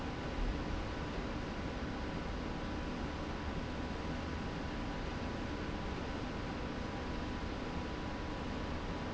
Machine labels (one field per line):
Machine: slide rail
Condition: normal